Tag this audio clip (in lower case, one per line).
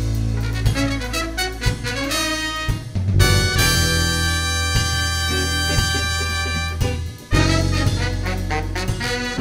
music